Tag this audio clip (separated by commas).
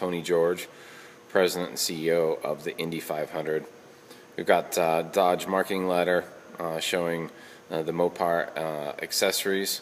Speech